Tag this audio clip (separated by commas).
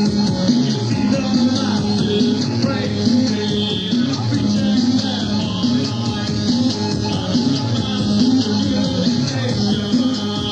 Music, Music of Latin America